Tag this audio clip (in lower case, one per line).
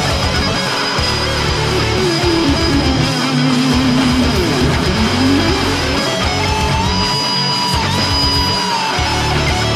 plucked string instrument
musical instrument
guitar